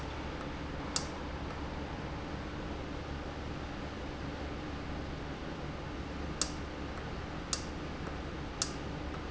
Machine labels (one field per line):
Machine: valve